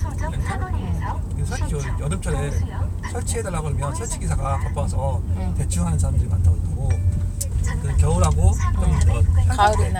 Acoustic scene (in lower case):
car